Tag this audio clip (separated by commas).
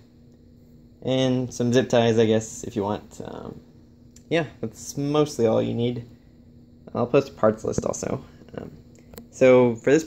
Speech